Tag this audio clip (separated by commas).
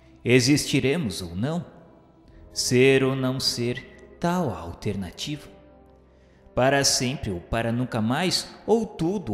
Speech, Music